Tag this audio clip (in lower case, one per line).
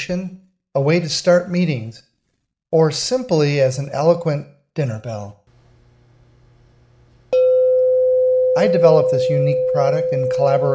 music
speech